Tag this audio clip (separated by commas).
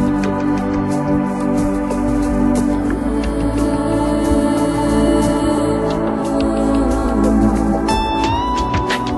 Music, Trance music